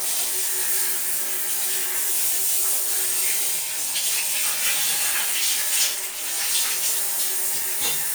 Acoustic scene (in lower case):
restroom